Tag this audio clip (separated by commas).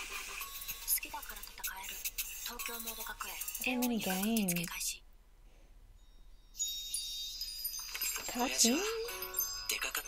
inside a small room, Speech, Music